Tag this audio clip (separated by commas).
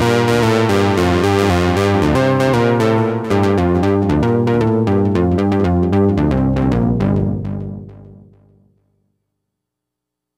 playing synthesizer